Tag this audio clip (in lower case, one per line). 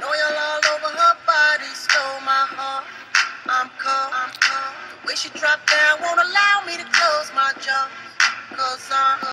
music